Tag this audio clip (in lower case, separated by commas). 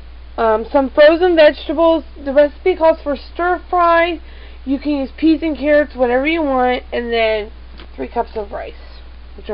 speech